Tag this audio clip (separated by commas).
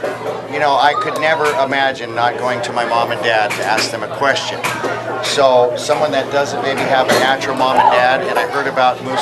Speech